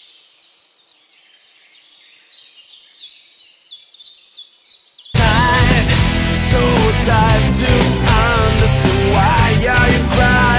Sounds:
Music

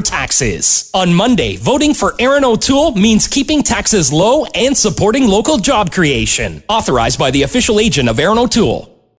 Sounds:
Speech

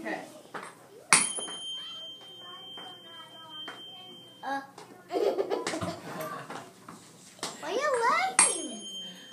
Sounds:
Tuning fork

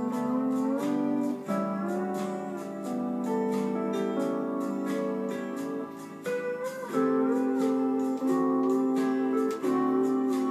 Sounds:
Plucked string instrument, Musical instrument, Music, Guitar

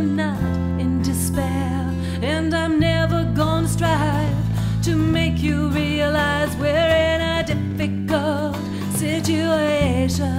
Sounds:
Music

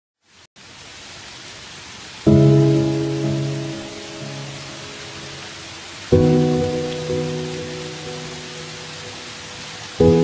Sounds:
Pink noise, Music

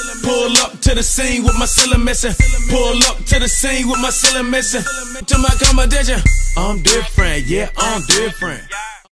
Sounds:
Music

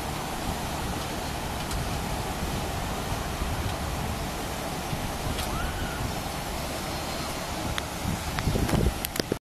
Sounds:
Waterfall

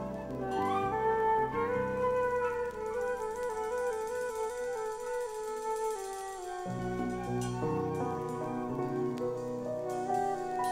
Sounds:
Music

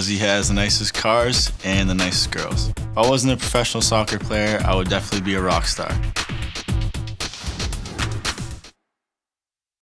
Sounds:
Music, Speech

